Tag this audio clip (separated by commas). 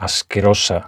Speech, man speaking, Human voice